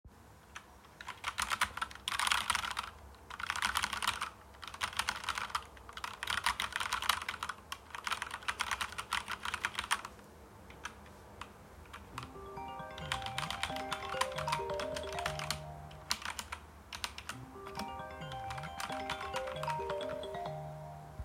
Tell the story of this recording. I was typing while someone was calling me on the phone.